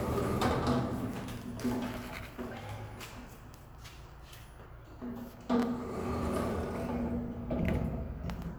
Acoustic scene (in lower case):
elevator